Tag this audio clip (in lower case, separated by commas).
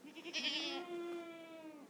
livestock, animal